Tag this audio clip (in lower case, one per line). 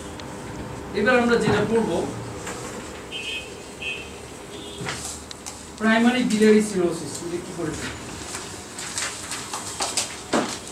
speech